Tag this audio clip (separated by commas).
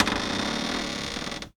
Cupboard open or close, home sounds, Door